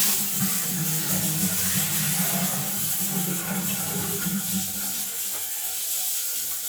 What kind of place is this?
restroom